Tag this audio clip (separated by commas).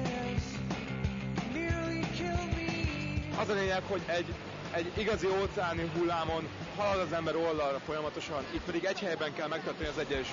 Speech, Music